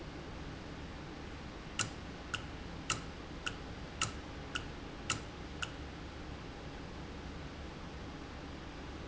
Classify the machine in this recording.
valve